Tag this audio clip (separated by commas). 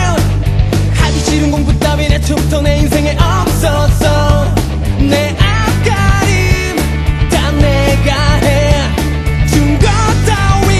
Music